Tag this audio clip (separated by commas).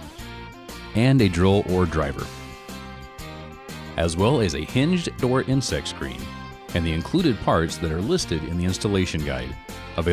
Music, Speech